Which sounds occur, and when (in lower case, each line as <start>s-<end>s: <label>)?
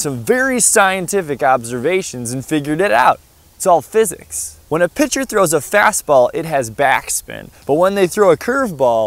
0.0s-3.1s: male speech
0.0s-9.0s: wind
3.6s-4.5s: male speech
4.7s-9.0s: male speech